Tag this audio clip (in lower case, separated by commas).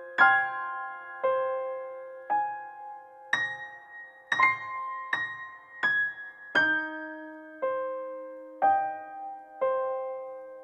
music